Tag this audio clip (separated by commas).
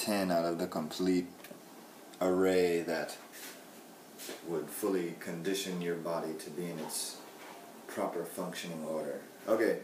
Speech